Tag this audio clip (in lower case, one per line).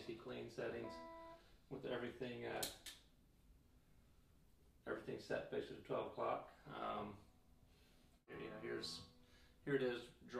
speech